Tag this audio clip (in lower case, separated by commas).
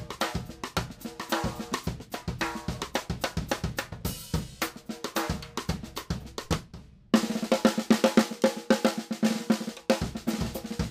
drum kit, snare drum, rimshot, bass drum, drum roll, drum, percussion